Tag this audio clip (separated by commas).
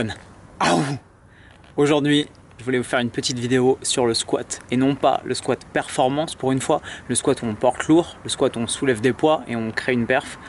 Speech